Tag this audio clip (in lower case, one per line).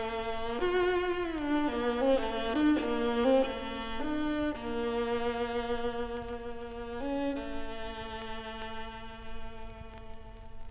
music
musical instrument
fiddle